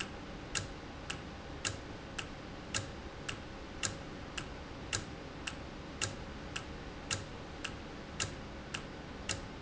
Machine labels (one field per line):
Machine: valve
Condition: normal